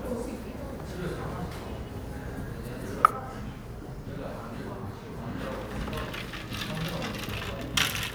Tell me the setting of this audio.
cafe